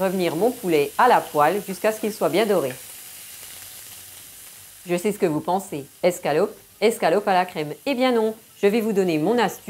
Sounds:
speech

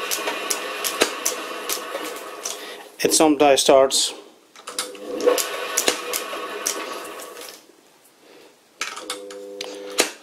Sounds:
speech

